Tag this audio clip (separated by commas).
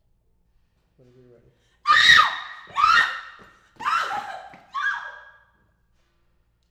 Screaming, Human voice